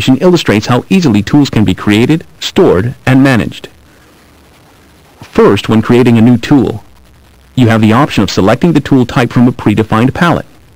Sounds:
speech synthesizer, speech

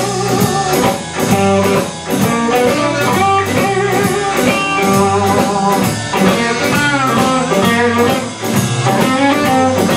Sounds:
music

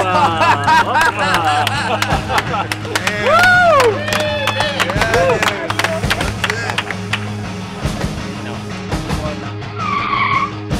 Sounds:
speech, music, vehicle

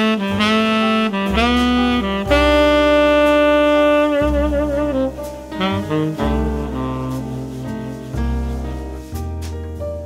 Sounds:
playing saxophone

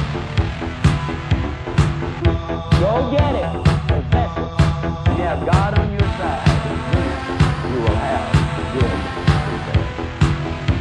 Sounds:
music, speech

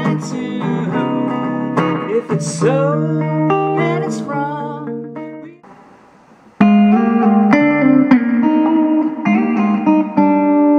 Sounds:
plucked string instrument, guitar, musical instrument, strum, acoustic guitar, music

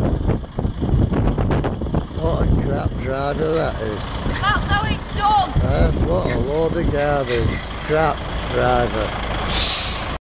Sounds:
truck, speech, vehicle, motor vehicle (road)

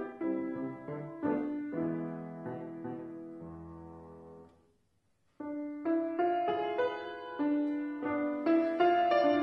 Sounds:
music

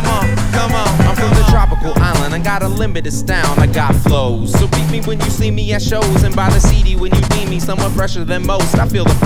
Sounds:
middle eastern music, new-age music, music

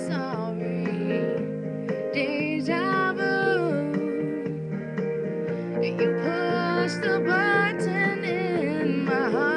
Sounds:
music, female singing

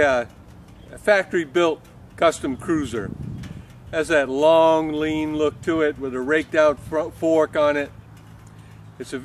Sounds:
speech

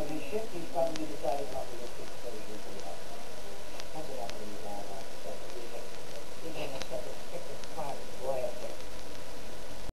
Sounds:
speech

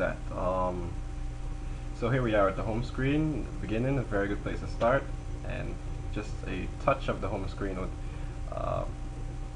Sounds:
speech

